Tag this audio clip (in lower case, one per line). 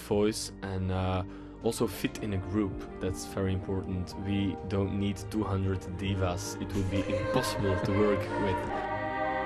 speech
music
choir